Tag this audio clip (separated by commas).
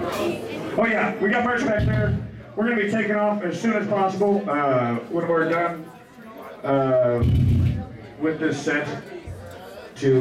Speech